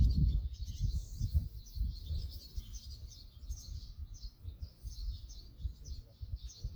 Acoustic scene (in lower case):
park